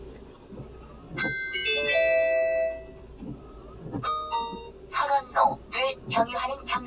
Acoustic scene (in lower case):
car